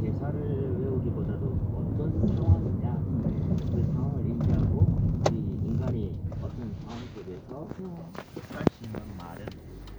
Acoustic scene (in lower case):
car